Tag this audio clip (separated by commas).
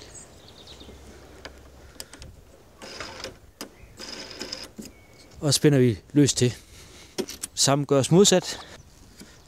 Speech